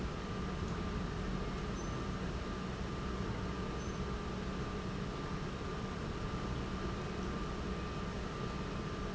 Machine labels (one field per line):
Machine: pump